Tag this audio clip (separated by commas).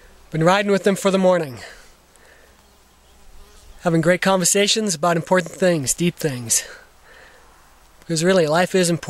Speech